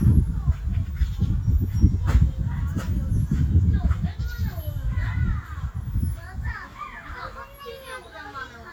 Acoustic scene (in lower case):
park